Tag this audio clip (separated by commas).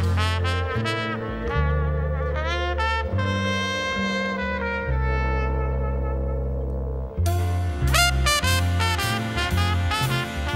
Music, Trumpet, Brass instrument, Musical instrument, Orchestra